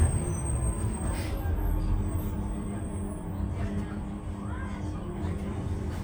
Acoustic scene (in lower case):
bus